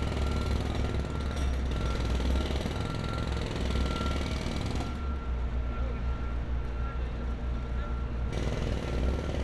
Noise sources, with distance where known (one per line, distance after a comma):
unidentified impact machinery, near